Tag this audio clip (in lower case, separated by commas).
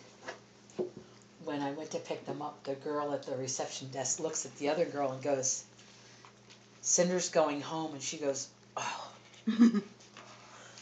speech